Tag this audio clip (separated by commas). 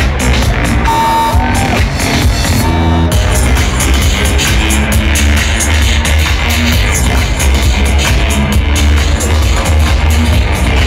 Techno, Electronic music, Music